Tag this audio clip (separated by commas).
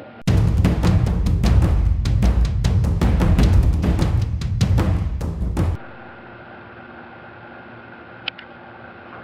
Music